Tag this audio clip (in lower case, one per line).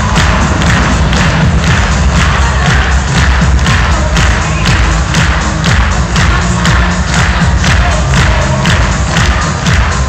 clip-clop
music